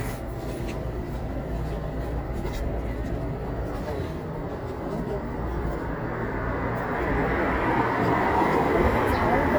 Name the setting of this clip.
residential area